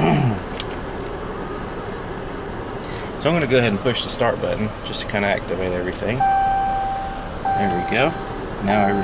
An older man is vocalizing something followed by a beeping sound